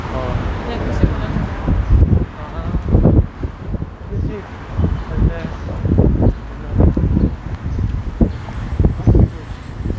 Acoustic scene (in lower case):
street